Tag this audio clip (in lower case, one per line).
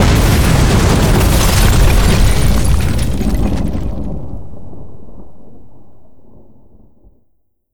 boom
explosion